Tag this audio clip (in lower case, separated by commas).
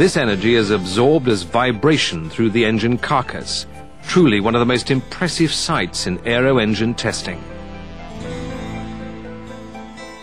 music, speech